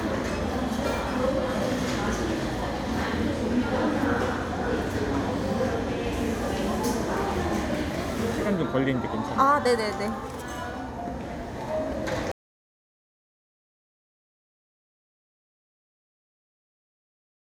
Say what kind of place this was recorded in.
cafe